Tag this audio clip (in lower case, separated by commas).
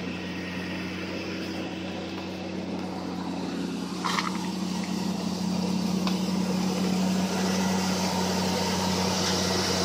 outside, urban or man-made, car, vehicle